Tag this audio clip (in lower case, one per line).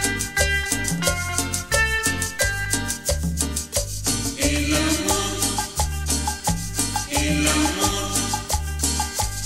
music